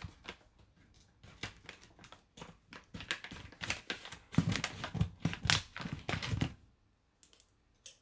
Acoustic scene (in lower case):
kitchen